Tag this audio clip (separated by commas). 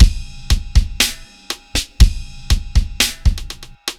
Percussion, Drum kit, Music, Musical instrument